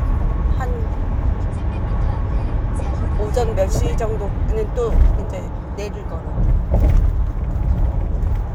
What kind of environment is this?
car